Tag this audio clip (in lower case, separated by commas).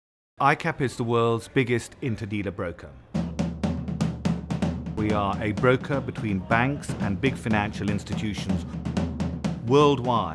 snare drum, drum